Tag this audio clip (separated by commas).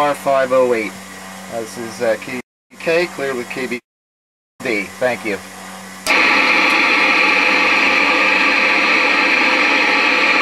Radio, Speech